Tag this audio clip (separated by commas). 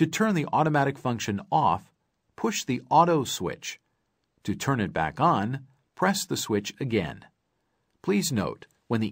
Speech